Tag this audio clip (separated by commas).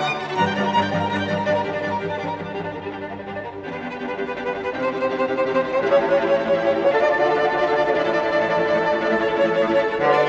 Music, fiddle, Musical instrument